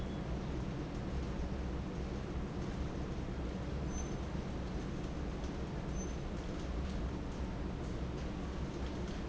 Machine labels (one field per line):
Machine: fan